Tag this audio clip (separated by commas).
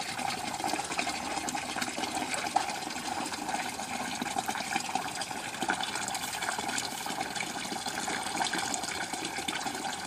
Water